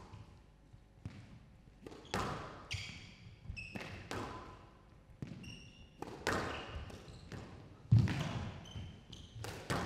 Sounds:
playing squash

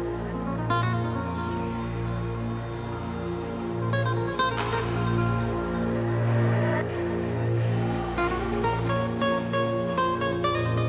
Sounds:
music

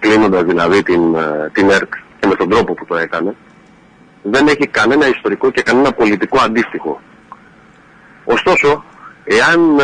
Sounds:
speech

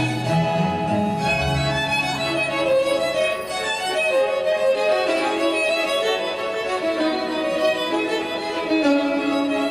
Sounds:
music
fiddle
musical instrument

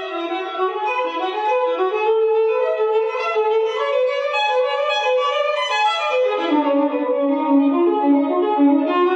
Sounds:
musical instrument
violin
music
bowed string instrument

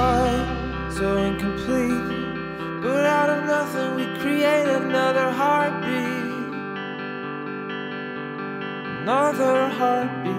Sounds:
effects unit

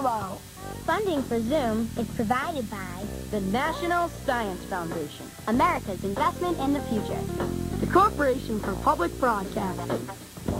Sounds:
music
speech

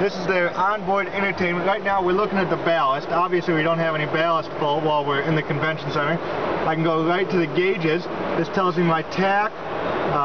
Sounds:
speech

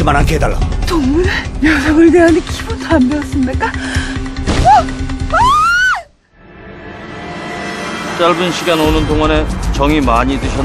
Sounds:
speech
music

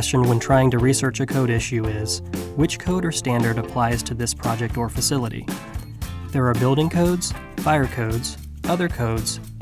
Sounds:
music
speech

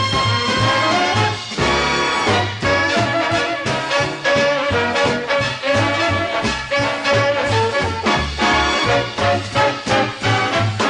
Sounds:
music
swing music

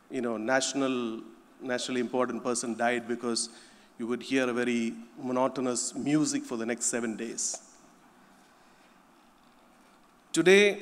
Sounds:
speech

